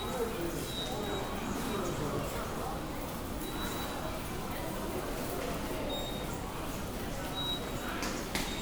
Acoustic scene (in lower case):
subway station